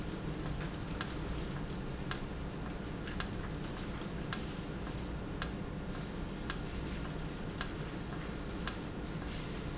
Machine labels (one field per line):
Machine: valve